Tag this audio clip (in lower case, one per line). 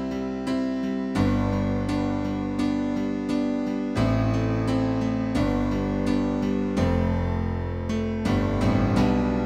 music
independent music